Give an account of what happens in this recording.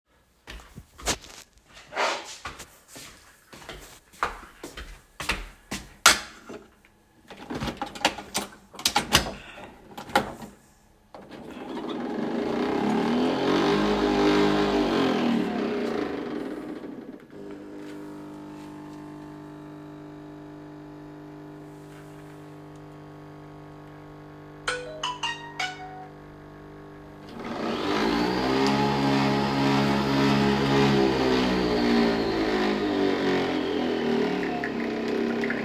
I walked to the coffee machine and placed a cup under it. I opened the lid, inserted a coffee pod, closed the lid, and started the coffee machine. The coffee was brewing and I turned the machine off. Near the end of the recording a phone notification could be heard in the background.